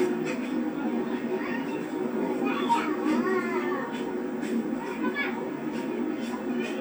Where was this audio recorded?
in a park